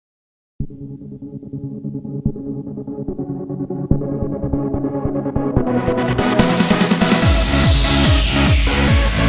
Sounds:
heavy metal
music
rock music

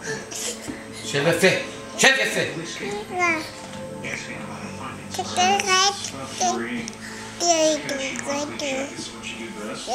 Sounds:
speech

